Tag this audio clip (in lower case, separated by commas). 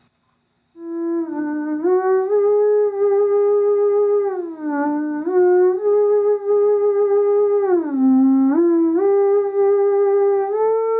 music, theremin